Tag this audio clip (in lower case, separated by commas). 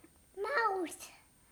kid speaking, human voice, speech